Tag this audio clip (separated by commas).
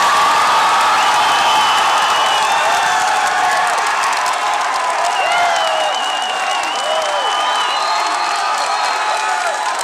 Speech